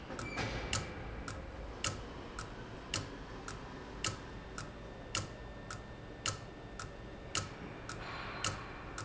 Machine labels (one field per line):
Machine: valve